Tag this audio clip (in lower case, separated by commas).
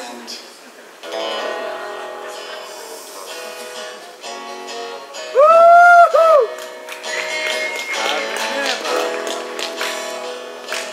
music